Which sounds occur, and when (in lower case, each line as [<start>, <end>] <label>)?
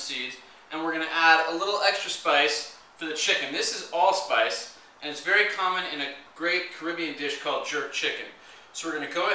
[0.00, 0.41] man speaking
[0.00, 9.34] mechanisms
[0.65, 2.69] man speaking
[2.95, 4.74] man speaking
[4.96, 6.15] man speaking
[6.33, 8.34] man speaking
[8.37, 8.66] breathing
[8.68, 9.34] man speaking